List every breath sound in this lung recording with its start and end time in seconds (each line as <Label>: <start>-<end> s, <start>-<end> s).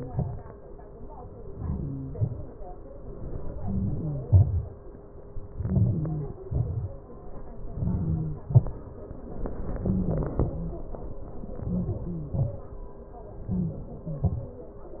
Inhalation: 1.54-2.03 s, 3.61-4.09 s, 5.64-6.37 s, 7.79-8.38 s, 11.67-12.31 s, 13.54-14.04 s
Exhalation: 2.16-2.44 s, 4.36-4.75 s, 6.53-6.97 s, 8.55-8.94 s, 12.41-12.73 s, 14.18-14.44 s